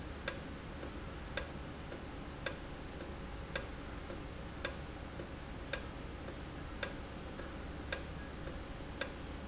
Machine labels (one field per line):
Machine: valve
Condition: normal